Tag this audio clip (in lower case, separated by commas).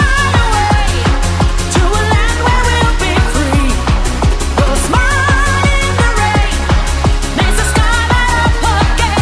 music